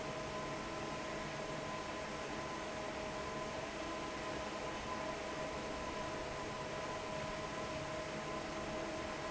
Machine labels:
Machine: fan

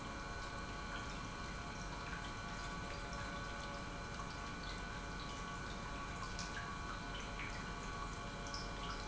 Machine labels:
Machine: pump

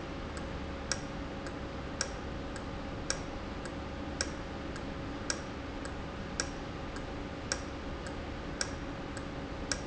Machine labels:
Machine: valve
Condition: normal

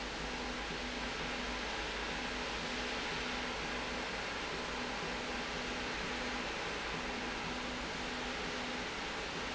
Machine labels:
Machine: slide rail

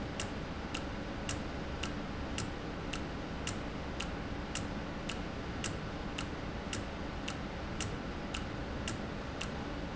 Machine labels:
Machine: valve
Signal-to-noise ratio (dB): -6 dB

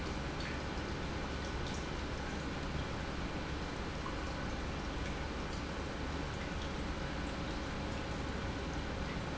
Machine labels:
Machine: pump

